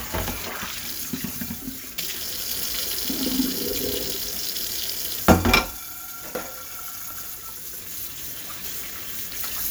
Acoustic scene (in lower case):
kitchen